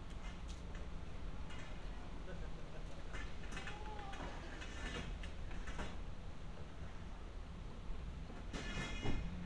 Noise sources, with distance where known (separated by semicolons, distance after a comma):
non-machinery impact; person or small group talking